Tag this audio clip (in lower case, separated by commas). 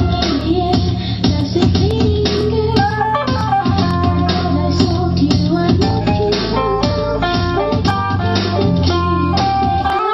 music